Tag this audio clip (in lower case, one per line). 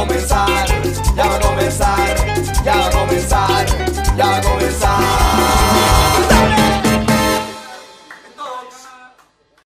speech
music